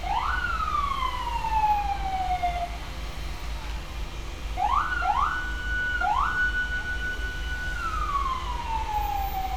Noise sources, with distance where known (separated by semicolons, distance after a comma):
unidentified powered saw; siren